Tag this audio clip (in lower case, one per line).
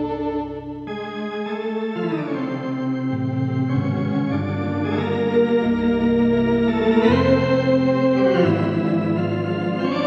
keyboard (musical)
musical instrument
electronic organ
music
playing electronic organ